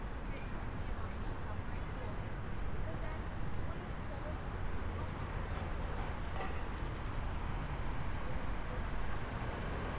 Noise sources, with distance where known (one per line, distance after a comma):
person or small group talking